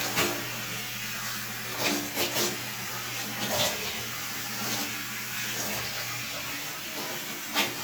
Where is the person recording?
in a restroom